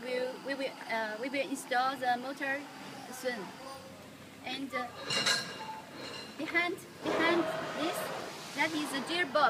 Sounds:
Speech

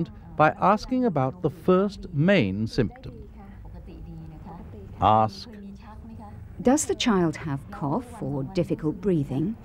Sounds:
Speech

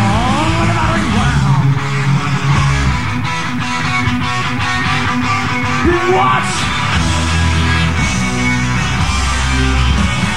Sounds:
Rock and roll, Music

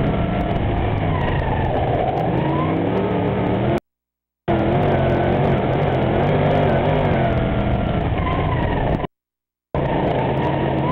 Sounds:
Motor vehicle (road), Car, Vehicle

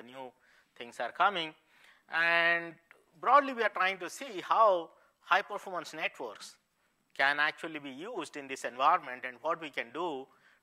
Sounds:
Speech

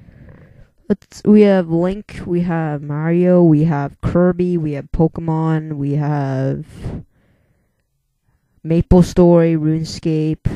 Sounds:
Speech

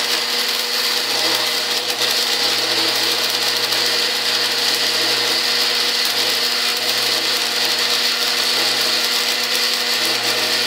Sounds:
Power tool, Tools

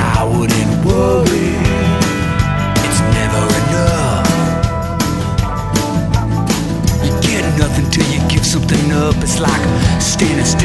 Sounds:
Music

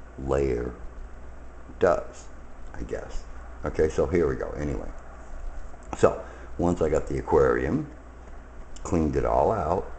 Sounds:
Speech

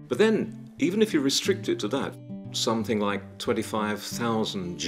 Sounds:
Music, Speech

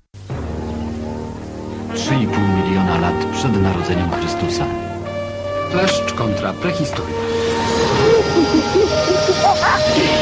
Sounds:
Speech, Music

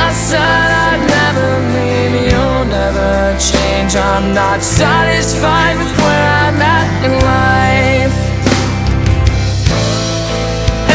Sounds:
Music

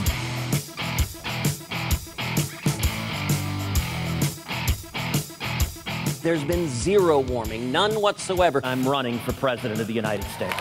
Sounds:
Male speech, Speech, Music, monologue

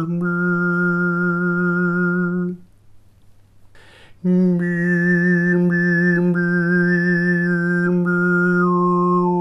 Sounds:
Synthetic singing

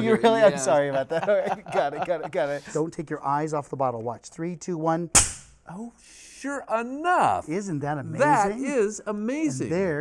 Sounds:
Speech

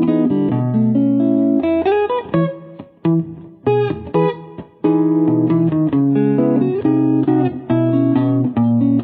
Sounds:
Guitar, Electric guitar, Strum, Music, Plucked string instrument, Musical instrument

